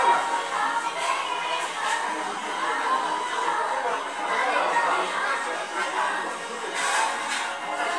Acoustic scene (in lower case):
restaurant